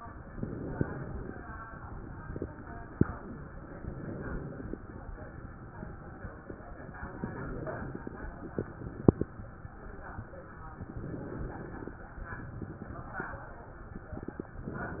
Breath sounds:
Inhalation: 0.28-1.43 s, 3.76-4.90 s, 7.08-8.22 s, 10.85-11.99 s

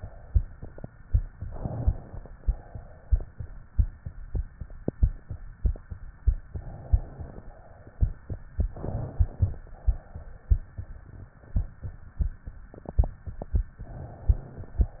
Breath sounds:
Inhalation: 1.44-2.30 s, 6.49-7.43 s, 8.71-9.61 s, 13.84-14.76 s
Exhalation: 2.30-3.24 s, 7.43-8.13 s, 9.61-10.53 s, 14.76-15.00 s

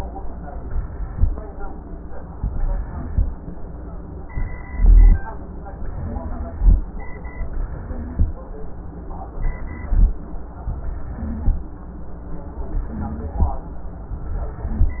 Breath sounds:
Inhalation: 0.36-1.12 s, 2.33-3.09 s, 4.29-5.22 s, 5.84-6.78 s, 7.51-8.27 s, 9.37-10.13 s, 10.80-11.65 s, 12.69-13.55 s
Wheeze: 5.84-6.60 s, 7.86-8.27 s, 10.80-11.65 s, 12.69-13.55 s

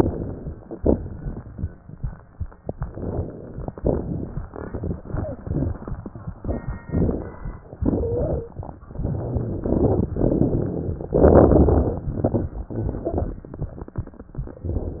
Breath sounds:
Inhalation: 0.00-0.72 s, 2.81-3.70 s, 6.85-7.50 s, 11.18-12.03 s
Exhalation: 0.78-1.37 s, 3.74-4.44 s, 7.82-8.50 s, 12.12-12.62 s
Wheeze: 7.89-8.35 s
Crackles: 0.00-0.72 s, 0.78-1.37 s, 2.81-3.70 s, 3.74-4.44 s, 6.85-7.50 s, 11.18-12.03 s, 12.12-12.62 s

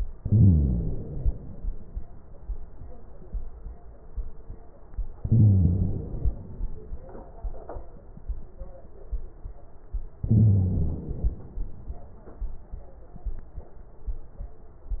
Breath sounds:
Inhalation: 0.15-1.65 s, 5.21-6.71 s, 10.24-11.74 s
Crackles: 0.15-1.65 s, 5.21-6.71 s, 10.24-11.74 s

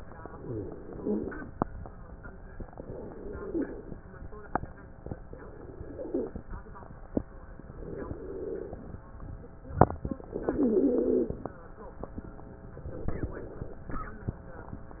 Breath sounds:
Inhalation: 0.10-1.51 s, 2.60-4.01 s, 5.20-6.45 s, 7.76-9.01 s, 10.22-11.57 s, 12.76-13.81 s
Stridor: 0.36-1.47 s, 3.16-3.89 s, 5.68-6.41 s, 10.36-11.37 s

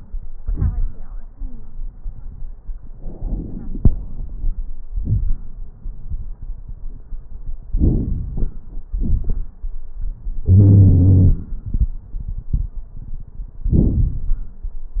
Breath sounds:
Inhalation: 2.96-4.62 s, 7.74-8.70 s
Exhalation: 4.88-5.56 s, 8.91-9.54 s
Wheeze: 10.46-11.45 s
Crackles: 2.96-4.62 s, 4.88-5.56 s, 7.74-8.70 s, 8.91-9.54 s

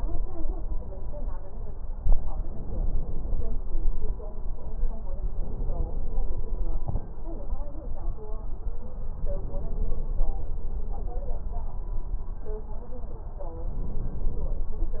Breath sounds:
Inhalation: 2.40-3.66 s, 5.36-6.78 s, 9.06-10.47 s, 13.67-14.74 s

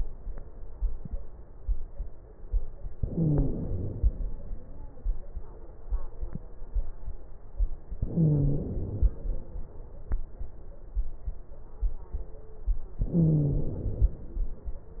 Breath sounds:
Inhalation: 2.94-4.31 s, 8.00-9.27 s, 13.05-14.33 s
Wheeze: 2.94-3.63 s, 8.00-8.68 s, 13.05-13.76 s

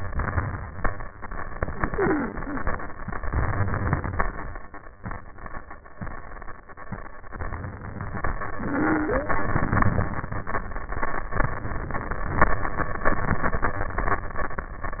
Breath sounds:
Inhalation: 1.56-3.00 s
Exhalation: 3.03-4.47 s, 8.26-10.12 s
Stridor: 1.88-2.63 s, 8.62-9.38 s
Crackles: 3.37-4.13 s

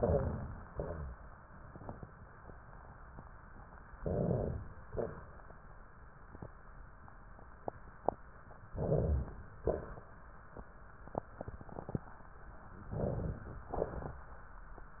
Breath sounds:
Inhalation: 3.98-4.86 s, 8.75-9.62 s, 12.93-13.68 s
Exhalation: 0.69-1.29 s, 4.88-5.42 s, 9.64-10.12 s, 13.68-14.28 s
Rhonchi: 0.69-1.29 s, 3.98-4.84 s, 8.75-9.62 s
Crackles: 13.68-14.28 s

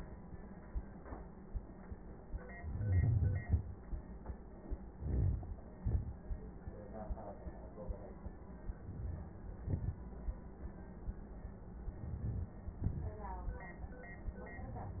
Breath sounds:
Inhalation: 2.53-3.40 s, 4.88-5.75 s, 8.70-9.44 s, 11.67-12.60 s
Exhalation: 3.42-4.48 s, 5.78-6.72 s, 9.46-10.56 s, 12.60-13.85 s
Crackles: 2.53-3.40 s, 4.88-5.75 s, 5.78-6.72 s, 9.46-10.56 s, 11.67-12.60 s

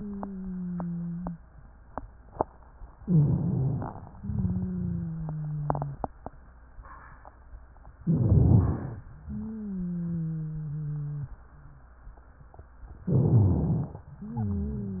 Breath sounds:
Inhalation: 2.97-4.16 s, 7.99-9.04 s, 13.03-14.07 s
Wheeze: 0.00-1.43 s, 2.95-4.14 s, 4.16-6.03 s, 9.19-11.43 s, 14.15-15.00 s
Rhonchi: 7.97-9.05 s, 13.03-14.11 s

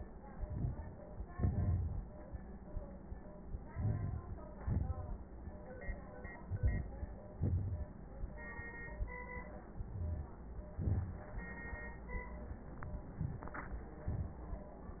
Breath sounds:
Inhalation: 0.38-1.03 s, 3.70-4.33 s, 6.51-7.14 s, 9.92-10.32 s
Exhalation: 1.39-2.03 s, 4.67-5.29 s, 7.44-7.89 s, 10.85-11.29 s

